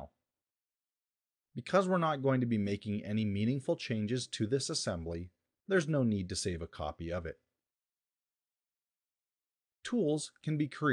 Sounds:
speech

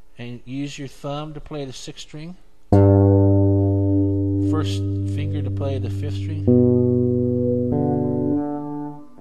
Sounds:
speech, electronic tuner, guitar, music, inside a small room, musical instrument, plucked string instrument

